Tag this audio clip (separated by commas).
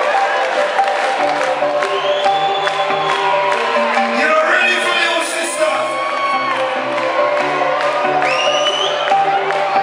Cheering, Crowd